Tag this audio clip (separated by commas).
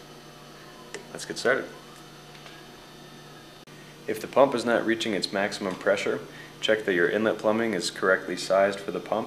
Speech